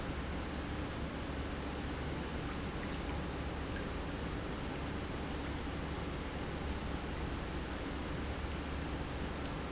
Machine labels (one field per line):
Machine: pump